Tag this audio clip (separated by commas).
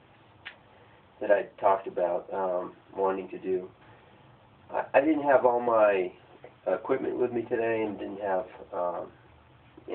Speech